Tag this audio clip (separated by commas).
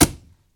thud